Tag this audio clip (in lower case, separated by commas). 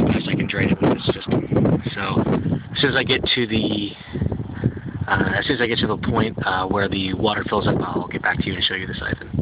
speech